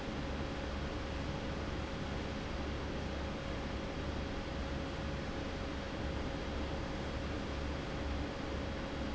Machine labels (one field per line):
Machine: fan